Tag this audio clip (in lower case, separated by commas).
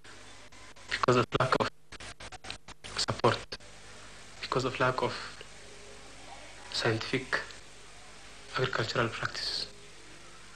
speech